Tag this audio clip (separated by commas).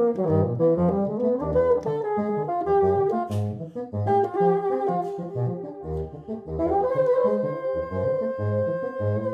playing bassoon